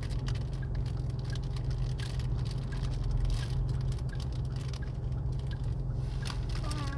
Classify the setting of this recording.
car